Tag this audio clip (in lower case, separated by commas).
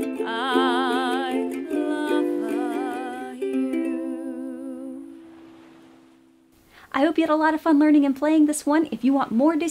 playing ukulele